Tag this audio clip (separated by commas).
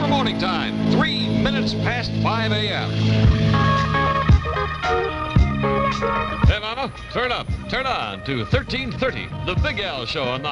Speech, Music